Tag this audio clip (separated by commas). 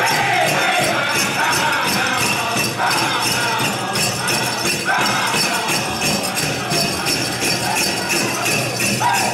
Music